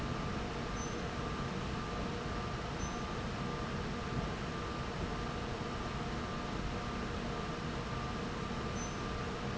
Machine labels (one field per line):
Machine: fan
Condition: abnormal